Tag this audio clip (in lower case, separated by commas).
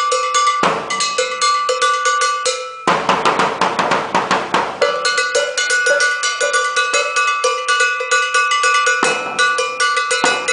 musical instrument, drum, music, drum kit, percussion